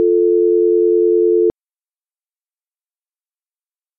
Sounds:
Telephone, Alarm

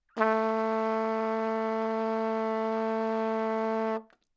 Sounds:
Musical instrument, Music, Brass instrument, Trumpet

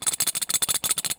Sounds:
Tools

